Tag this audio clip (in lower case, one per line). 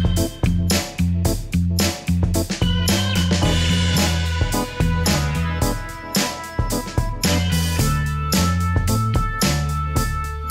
running electric fan